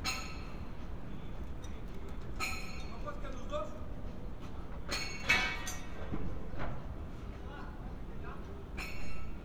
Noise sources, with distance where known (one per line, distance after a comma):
unidentified human voice